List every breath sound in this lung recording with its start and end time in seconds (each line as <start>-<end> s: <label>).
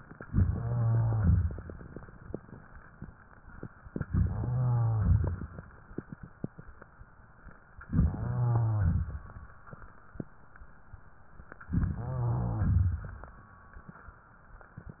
0.23-1.31 s: inhalation
0.23-1.31 s: rhonchi
1.31-1.86 s: exhalation
5.12-5.67 s: exhalation
7.88-8.90 s: inhalation
7.88-8.90 s: rhonchi
8.90-9.53 s: exhalation
11.71-12.79 s: inhalation
11.71-12.79 s: rhonchi
12.79-13.40 s: exhalation